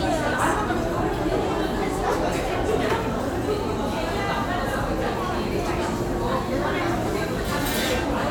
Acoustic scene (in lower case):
crowded indoor space